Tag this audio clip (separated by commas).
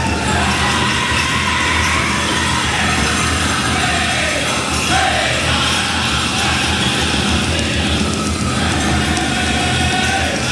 Music